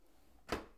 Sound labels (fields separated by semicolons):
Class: drawer; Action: closing; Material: wooden